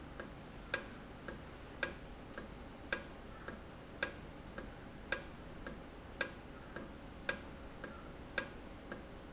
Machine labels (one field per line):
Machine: valve